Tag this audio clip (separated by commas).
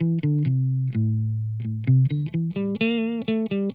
Music, Guitar, Plucked string instrument, Musical instrument, Electric guitar